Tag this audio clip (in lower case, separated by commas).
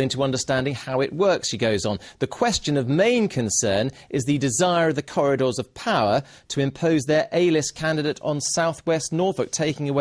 speech